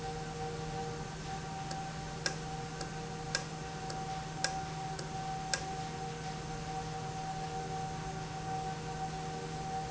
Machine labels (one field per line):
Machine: valve